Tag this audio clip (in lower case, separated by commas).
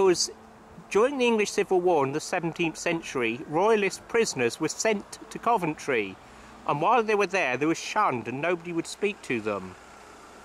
speech, outside, rural or natural